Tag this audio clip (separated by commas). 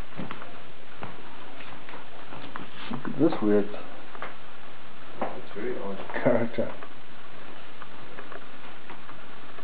Speech